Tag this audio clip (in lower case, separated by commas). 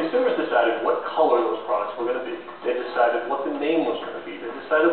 speech